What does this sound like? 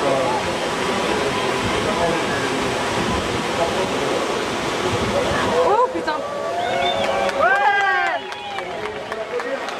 Water rushes as an amplified voice speaks and a small audience claps and cheers